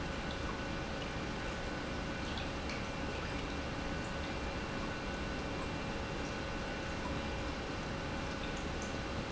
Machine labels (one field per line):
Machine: pump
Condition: normal